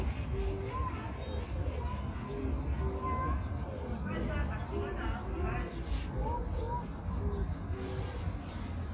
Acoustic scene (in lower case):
park